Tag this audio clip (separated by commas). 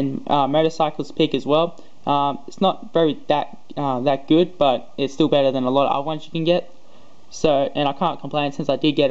Speech